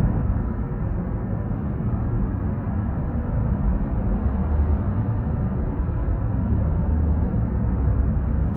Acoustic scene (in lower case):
car